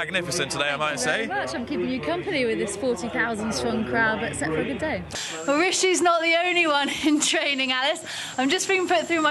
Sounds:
Speech

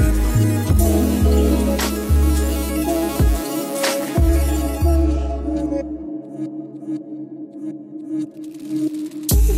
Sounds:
Electronica

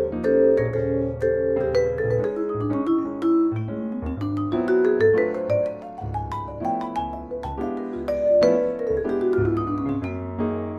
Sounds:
Vibraphone, Musical instrument, Music, playing vibraphone

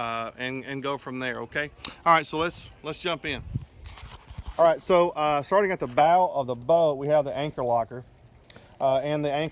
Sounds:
Speech

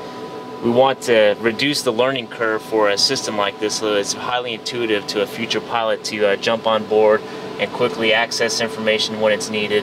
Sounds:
Speech

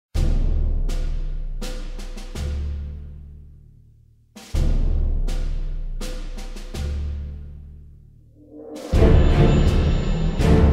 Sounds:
Timpani, Music, Soundtrack music

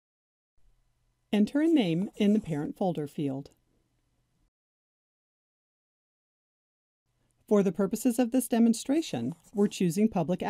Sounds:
Speech

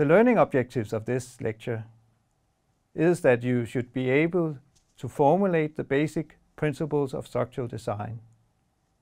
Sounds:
Speech

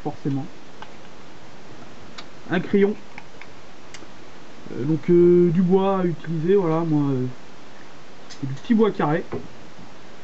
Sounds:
Speech

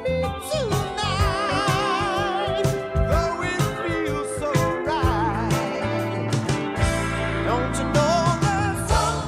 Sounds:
Music

